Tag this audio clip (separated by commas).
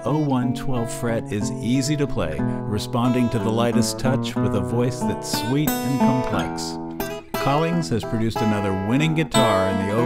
Music, Guitar, Acoustic guitar, Musical instrument, Speech, Strum, Plucked string instrument